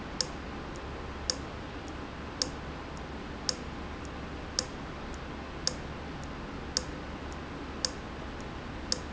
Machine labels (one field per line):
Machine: valve